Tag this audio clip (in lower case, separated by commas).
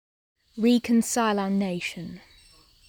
speech, human voice